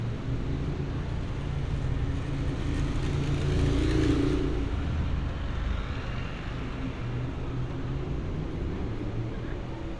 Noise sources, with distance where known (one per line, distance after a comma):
medium-sounding engine, near